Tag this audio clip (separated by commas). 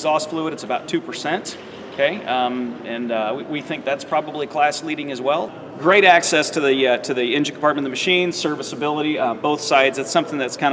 Speech